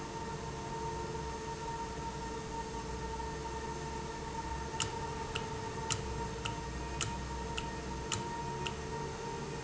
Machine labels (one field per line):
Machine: valve